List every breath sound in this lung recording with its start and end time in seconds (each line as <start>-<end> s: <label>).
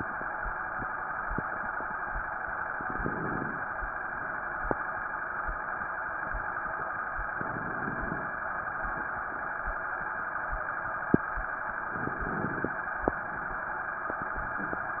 2.75-3.68 s: crackles
2.79-3.72 s: inhalation
7.42-8.35 s: inhalation
7.42-8.35 s: crackles
11.88-12.81 s: inhalation
11.88-12.81 s: crackles